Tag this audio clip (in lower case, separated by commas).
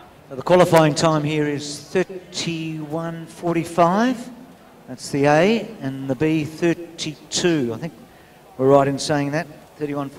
outside, urban or man-made, speech